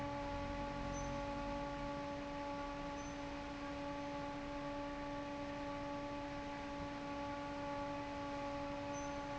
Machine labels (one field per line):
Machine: fan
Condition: normal